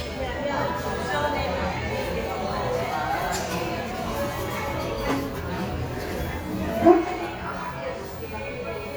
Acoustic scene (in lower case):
cafe